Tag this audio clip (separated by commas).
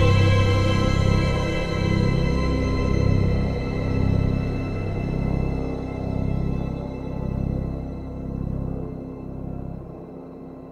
Music